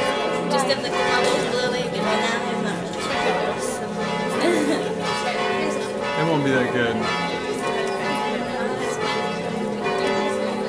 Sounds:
church bell ringing

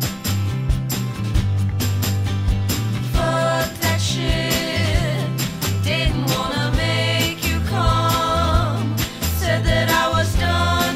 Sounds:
Music

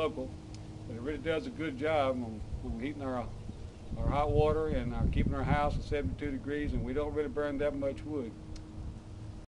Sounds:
Speech

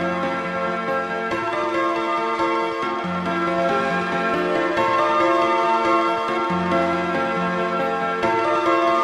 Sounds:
Electronica, Music

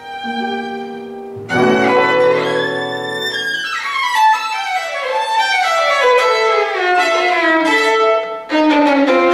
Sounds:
Music, fiddle, Musical instrument

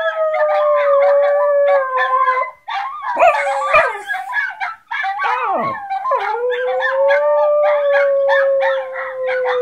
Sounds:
Dog, Animal, canids, Howl, Domestic animals

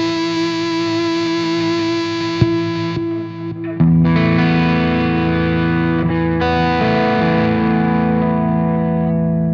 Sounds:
Effects unit, Music, Musical instrument, Guitar, Plucked string instrument

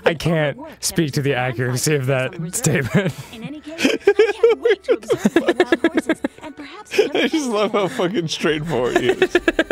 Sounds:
Speech

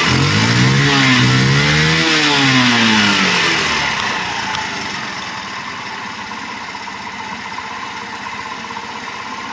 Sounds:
Accelerating, Idling, Vehicle

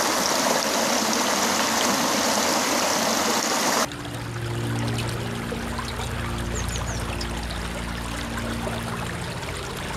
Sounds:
stream burbling, Stream

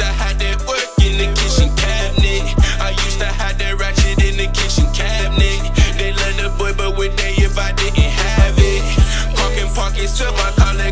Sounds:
Music

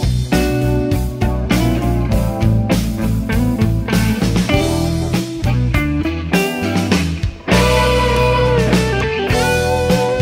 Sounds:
Plucked string instrument, Musical instrument, Music, Guitar, Jazz

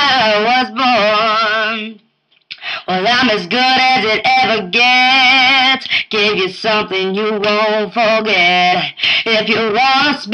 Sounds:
Female singing

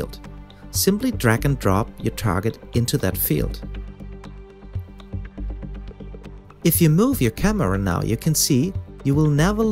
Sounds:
Speech

